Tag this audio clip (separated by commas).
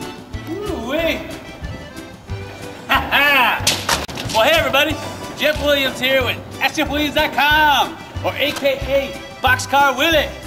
Music, Speech